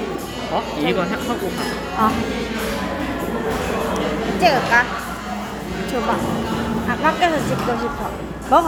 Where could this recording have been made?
in a cafe